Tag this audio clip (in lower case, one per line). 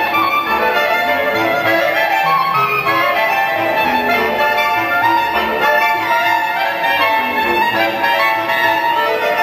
music
clarinet
musical instrument
woodwind instrument